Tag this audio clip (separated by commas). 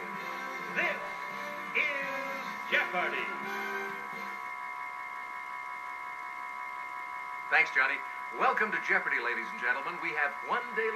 Speech, Music